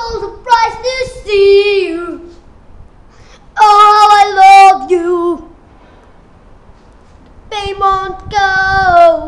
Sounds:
child singing, music

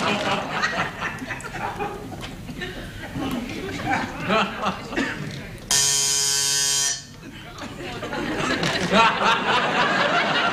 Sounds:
speech

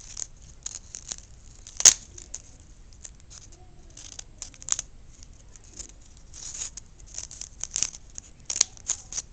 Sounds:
scissors

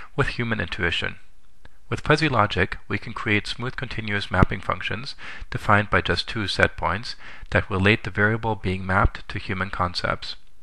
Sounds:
speech

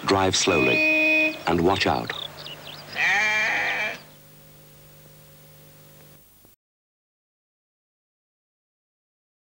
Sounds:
bleat, sheep, sheep bleating, speech

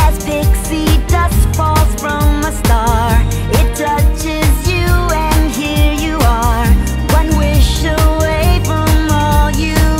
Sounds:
music

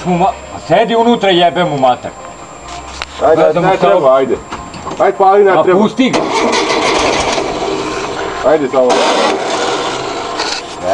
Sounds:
speech, engine starting, vehicle, heavy engine (low frequency), music, engine

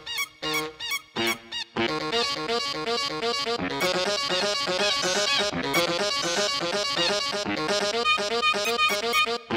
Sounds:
music

